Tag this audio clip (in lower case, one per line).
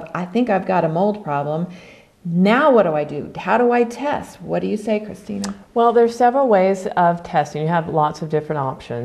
speech